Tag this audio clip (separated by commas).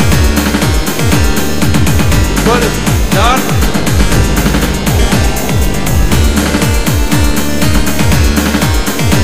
Electronic music, Music, Dubstep